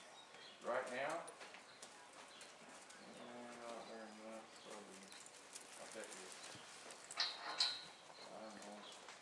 A man is speaking, followed by a horse blowing